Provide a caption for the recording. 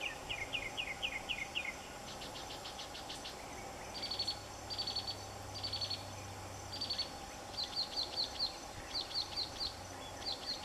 Birds chirping in the distance with wind blowing